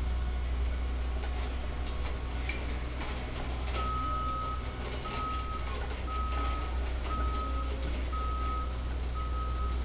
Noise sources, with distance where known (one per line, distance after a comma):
reverse beeper